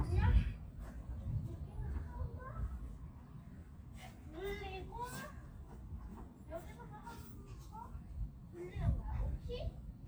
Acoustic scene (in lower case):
park